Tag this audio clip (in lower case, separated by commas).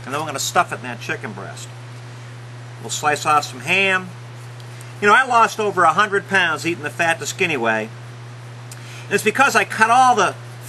speech